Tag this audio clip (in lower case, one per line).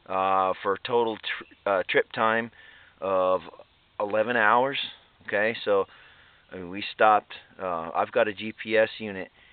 speech